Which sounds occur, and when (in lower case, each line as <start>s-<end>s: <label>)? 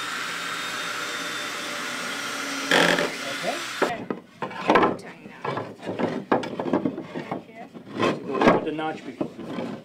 0.0s-3.9s: sawing
2.7s-3.0s: generic impact sounds
3.1s-3.7s: male speech
3.2s-9.2s: conversation
3.7s-4.1s: generic impact sounds
3.8s-4.2s: woman speaking
3.9s-9.8s: background noise
4.3s-4.9s: generic impact sounds
4.5s-4.8s: surface contact
4.8s-5.4s: woman speaking
5.1s-5.3s: generic impact sounds
5.4s-6.2s: generic impact sounds
6.3s-7.3s: generic impact sounds
7.0s-7.7s: woman speaking
7.9s-8.2s: generic impact sounds
8.2s-9.1s: male speech
8.3s-8.9s: generic impact sounds
9.1s-9.2s: generic impact sounds
9.4s-9.7s: generic impact sounds